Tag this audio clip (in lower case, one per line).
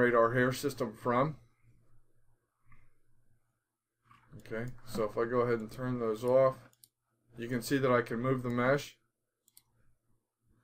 speech
inside a small room